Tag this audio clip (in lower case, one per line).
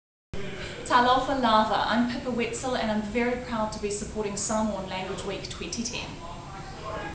speech